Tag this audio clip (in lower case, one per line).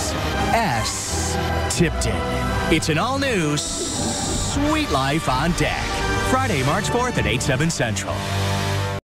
music
speech